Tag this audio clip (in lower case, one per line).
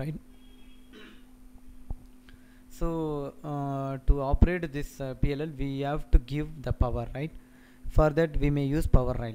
speech